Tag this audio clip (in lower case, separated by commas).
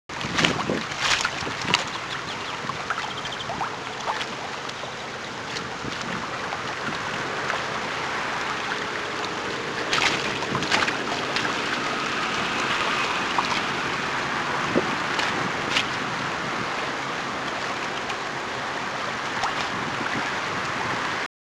ocean, surf, water